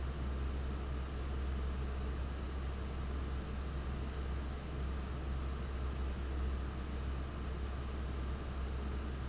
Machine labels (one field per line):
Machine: fan